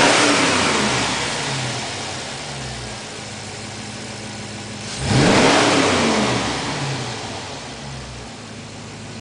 An engine is revved while a vehicle idles